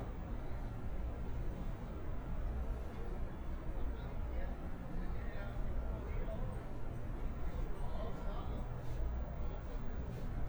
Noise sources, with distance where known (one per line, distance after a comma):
unidentified human voice